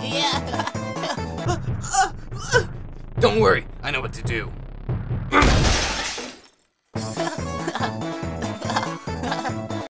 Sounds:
speech, music

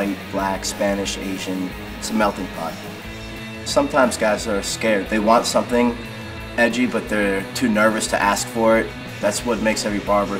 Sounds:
music, speech

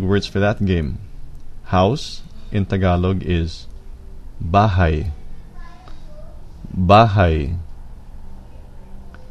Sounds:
speech

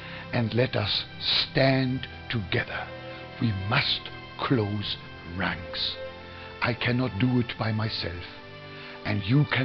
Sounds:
music, speech

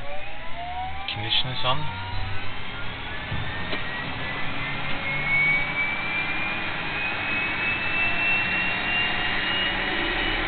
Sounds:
speech, engine, vehicle

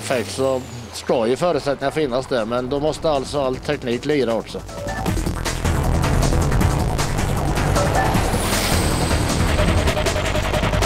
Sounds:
speech, vehicle, truck, music

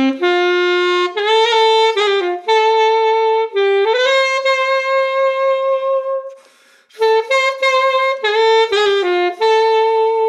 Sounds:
playing saxophone

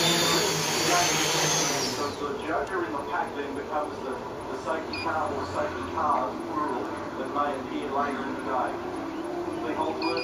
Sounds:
outside, rural or natural, speech

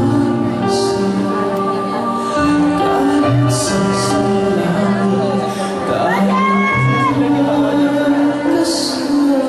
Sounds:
speech, music, male singing

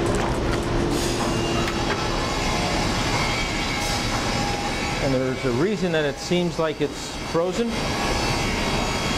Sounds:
music, speech

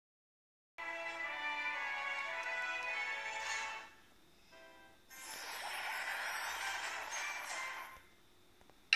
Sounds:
music, television

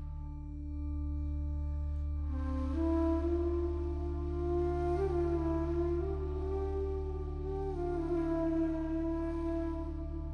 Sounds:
woodwind instrument, flute, music

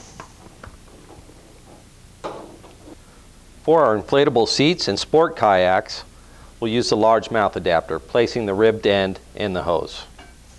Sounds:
speech

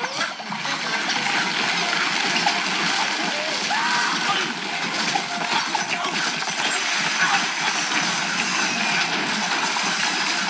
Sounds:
water

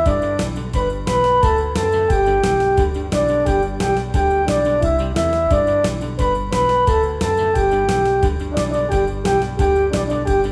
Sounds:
background music, music

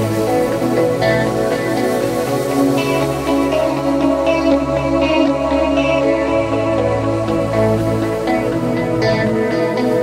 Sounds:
music

